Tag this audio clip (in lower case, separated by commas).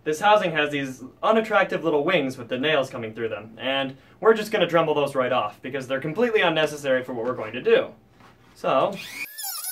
speech